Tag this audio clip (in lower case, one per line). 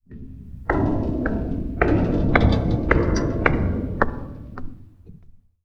footsteps